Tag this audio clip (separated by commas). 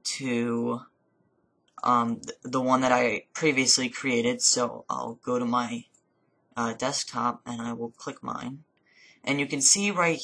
Speech